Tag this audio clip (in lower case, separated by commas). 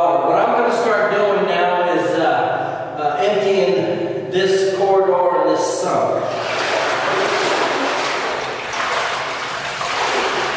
speech